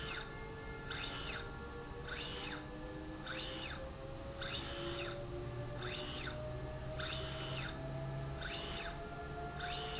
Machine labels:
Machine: slide rail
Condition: normal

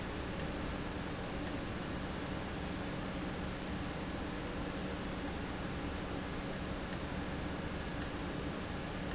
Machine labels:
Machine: valve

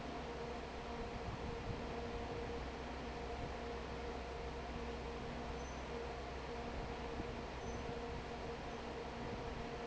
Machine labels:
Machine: fan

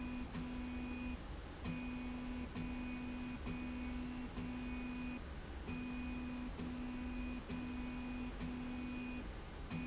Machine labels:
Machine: slide rail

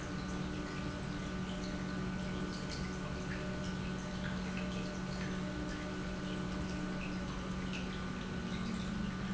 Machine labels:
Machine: pump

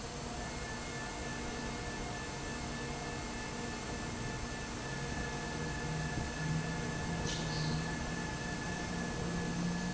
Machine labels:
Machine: fan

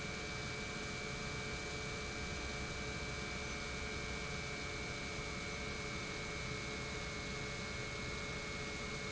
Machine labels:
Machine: pump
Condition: normal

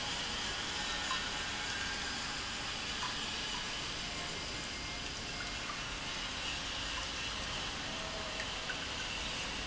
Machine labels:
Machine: pump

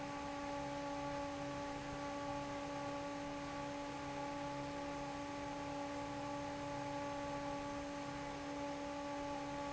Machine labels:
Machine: fan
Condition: normal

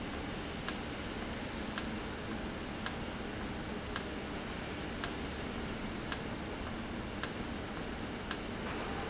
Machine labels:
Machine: valve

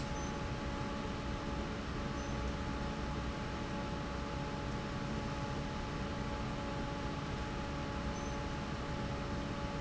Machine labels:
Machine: fan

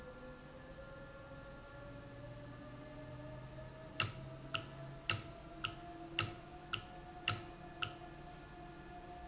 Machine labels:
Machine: valve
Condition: normal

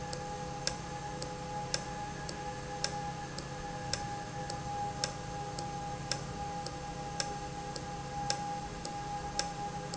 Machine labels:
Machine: valve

